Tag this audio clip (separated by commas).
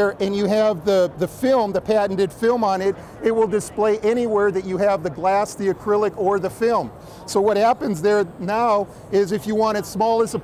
Speech